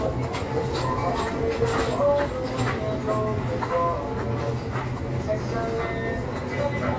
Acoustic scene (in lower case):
crowded indoor space